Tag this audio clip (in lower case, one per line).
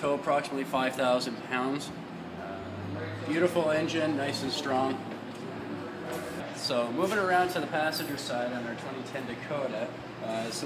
speech